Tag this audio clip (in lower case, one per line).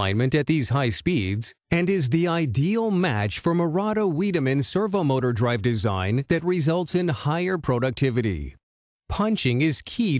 speech
speech synthesizer